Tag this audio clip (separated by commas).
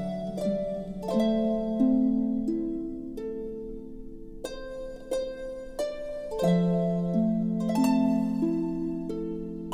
Music